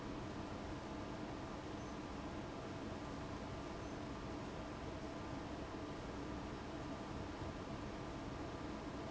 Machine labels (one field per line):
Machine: fan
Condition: abnormal